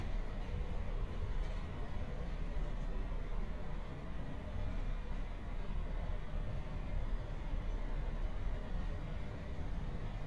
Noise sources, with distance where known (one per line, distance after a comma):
background noise